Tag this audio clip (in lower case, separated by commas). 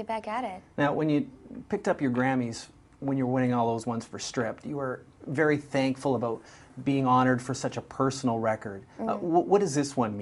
speech